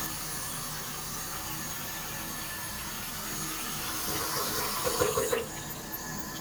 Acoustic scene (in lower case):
restroom